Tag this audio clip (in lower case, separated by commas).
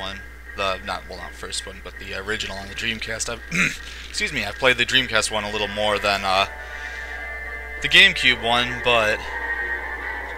speech